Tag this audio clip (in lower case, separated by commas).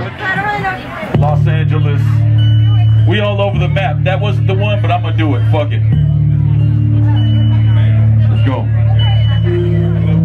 speech, music